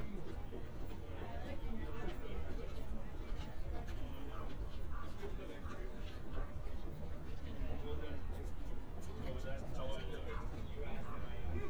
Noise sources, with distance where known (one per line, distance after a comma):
person or small group talking, near